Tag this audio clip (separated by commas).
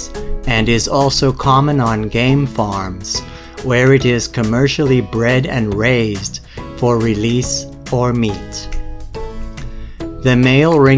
pheasant crowing